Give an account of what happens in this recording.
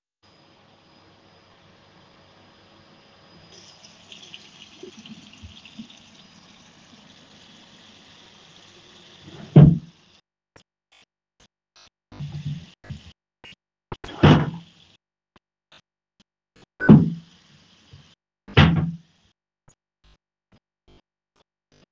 Vacuum cleaner in background, water running, while someone is opening wardrobe